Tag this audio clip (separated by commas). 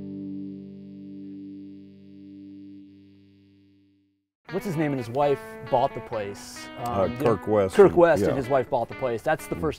Speech, Music